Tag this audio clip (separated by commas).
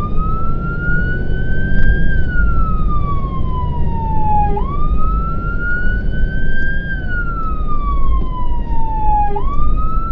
Emergency vehicle, fire truck (siren), Vehicle, Truck, Engine